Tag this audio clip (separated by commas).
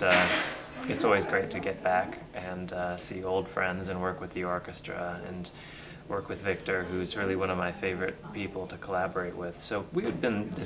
Speech